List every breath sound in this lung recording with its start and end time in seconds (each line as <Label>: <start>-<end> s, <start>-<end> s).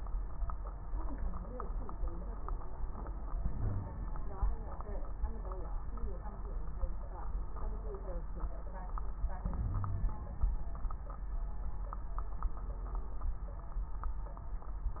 Inhalation: 3.29-4.22 s, 9.44-10.63 s
Wheeze: 3.57-3.96 s, 9.66-10.13 s